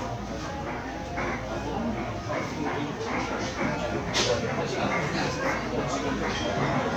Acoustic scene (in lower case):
crowded indoor space